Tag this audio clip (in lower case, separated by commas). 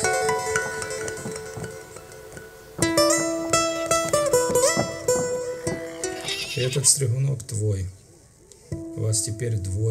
music, animal, speech